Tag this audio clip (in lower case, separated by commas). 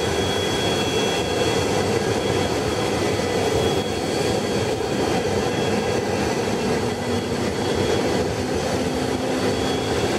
vehicle, aircraft, medium engine (mid frequency)